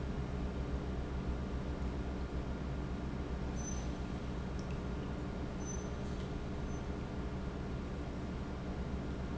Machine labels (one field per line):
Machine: pump